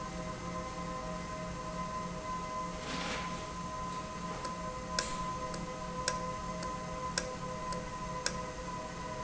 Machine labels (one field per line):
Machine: valve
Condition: normal